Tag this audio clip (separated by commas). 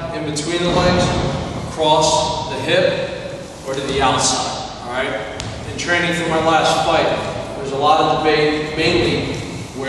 Speech